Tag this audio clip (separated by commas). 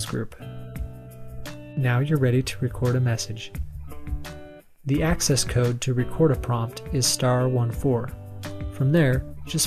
Music, Speech